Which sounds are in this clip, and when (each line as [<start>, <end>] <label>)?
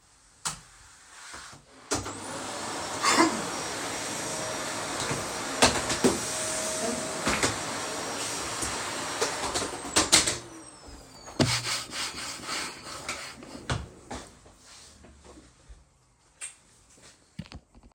[0.32, 0.74] light switch
[1.79, 10.33] vacuum cleaner
[6.95, 10.38] footsteps
[13.65, 14.32] footsteps